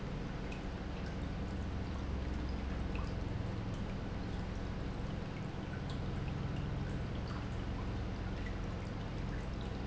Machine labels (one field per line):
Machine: pump